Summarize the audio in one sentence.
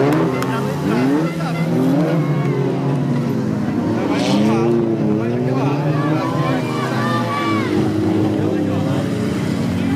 Ribbing up of vehicle motor while people in background talk muffled